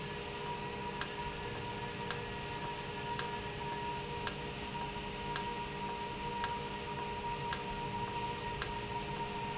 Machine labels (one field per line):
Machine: valve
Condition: normal